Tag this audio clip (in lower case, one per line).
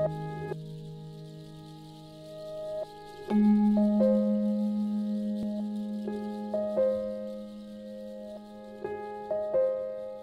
music